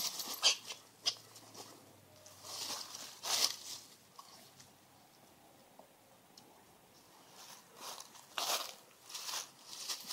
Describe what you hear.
Aniamal walking in dry grass